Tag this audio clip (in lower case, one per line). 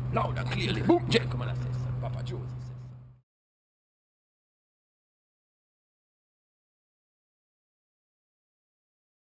speech